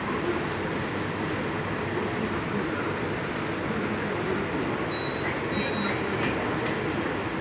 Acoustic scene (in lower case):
subway station